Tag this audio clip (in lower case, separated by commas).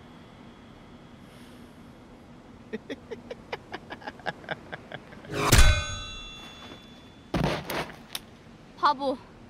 burst, speech